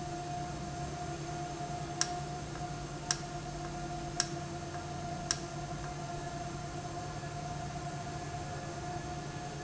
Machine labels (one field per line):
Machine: valve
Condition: normal